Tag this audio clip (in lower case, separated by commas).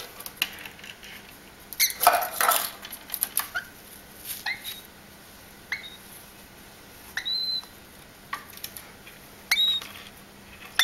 domestic animals, inside a small room, bird